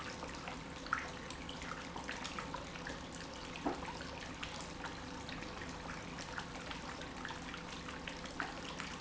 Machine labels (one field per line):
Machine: pump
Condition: normal